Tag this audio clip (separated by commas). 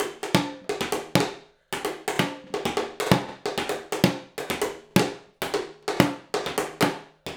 Music, Percussion, Musical instrument, Drum kit, Drum